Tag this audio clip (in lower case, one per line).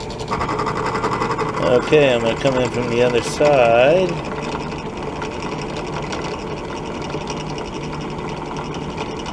drill
tools
power tool